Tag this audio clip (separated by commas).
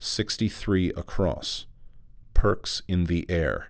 Human voice, Speech, Male speech